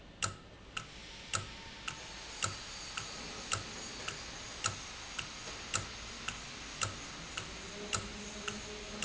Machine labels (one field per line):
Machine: valve